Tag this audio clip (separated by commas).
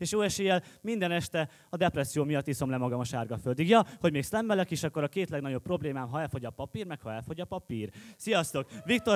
Speech